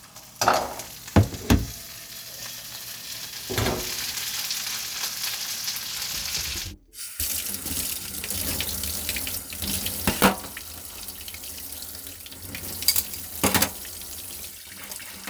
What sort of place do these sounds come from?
kitchen